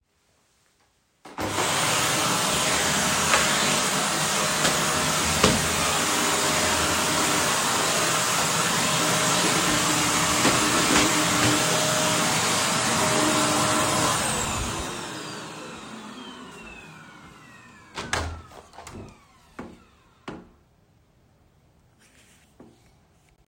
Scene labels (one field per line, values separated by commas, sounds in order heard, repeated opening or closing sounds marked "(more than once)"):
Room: bedroom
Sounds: vacuum cleaner, window